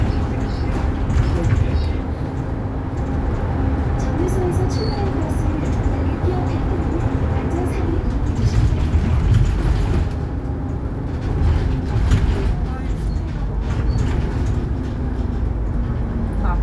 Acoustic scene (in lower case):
bus